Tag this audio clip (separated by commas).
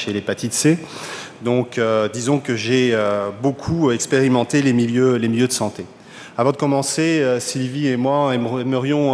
Speech